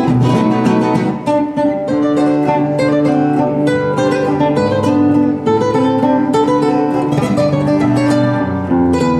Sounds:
Musical instrument, Plucked string instrument, Strum, Guitar, Music, playing acoustic guitar, Acoustic guitar

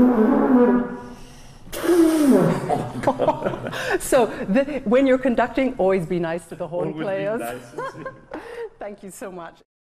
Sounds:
Speech, Funny music, Music

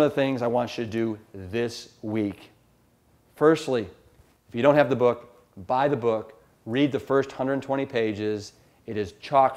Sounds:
Speech

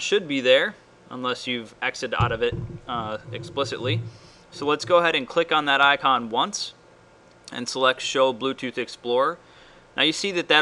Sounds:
Speech

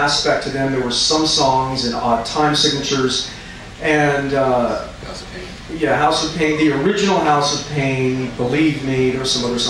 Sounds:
Speech, man speaking

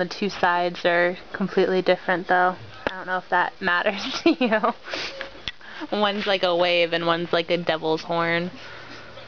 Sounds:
Speech

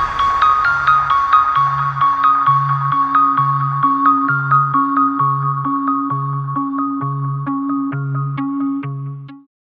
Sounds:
Soundtrack music, Music

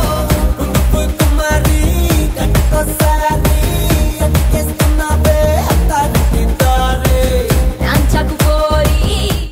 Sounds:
Music

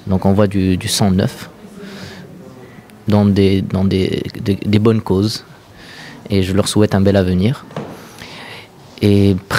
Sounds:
Speech

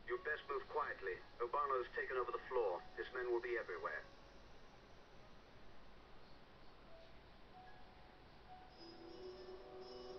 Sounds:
inside a large room or hall, Music, Speech

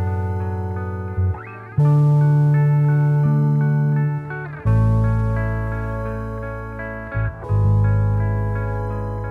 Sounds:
Music

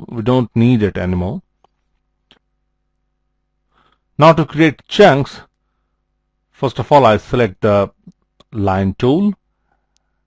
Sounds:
Speech

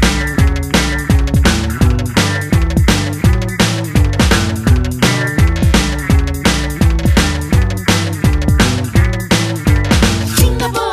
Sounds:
Music

